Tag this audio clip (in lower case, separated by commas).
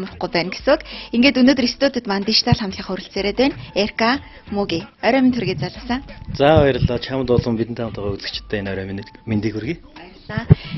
speech, music